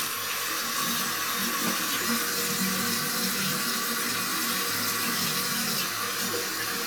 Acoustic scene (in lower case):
restroom